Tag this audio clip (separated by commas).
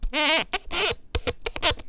Squeak